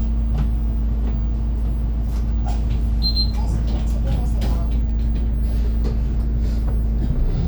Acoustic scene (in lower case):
bus